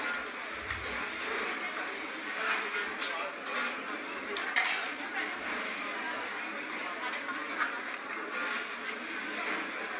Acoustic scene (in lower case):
restaurant